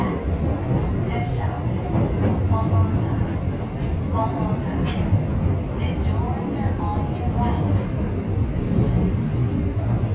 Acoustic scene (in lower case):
subway train